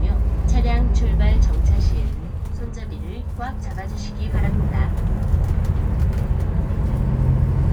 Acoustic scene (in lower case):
bus